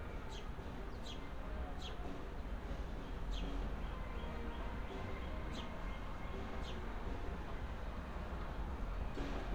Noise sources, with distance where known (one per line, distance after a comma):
music from a fixed source, far